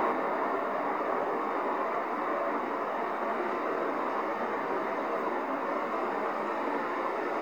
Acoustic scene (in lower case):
street